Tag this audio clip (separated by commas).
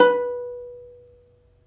Plucked string instrument, Music, Musical instrument